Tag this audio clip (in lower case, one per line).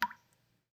water
rain
raindrop
drip
liquid